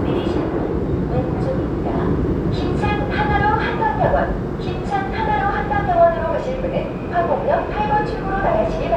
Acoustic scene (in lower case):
subway train